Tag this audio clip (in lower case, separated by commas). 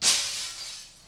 shatter, glass